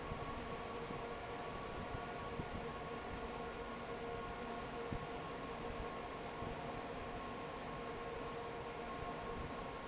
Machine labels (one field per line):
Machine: fan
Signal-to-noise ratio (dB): 6 dB